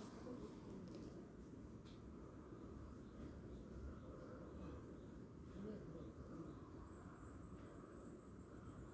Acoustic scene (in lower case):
park